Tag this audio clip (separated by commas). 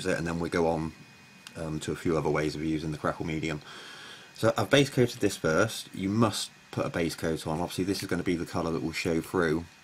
Speech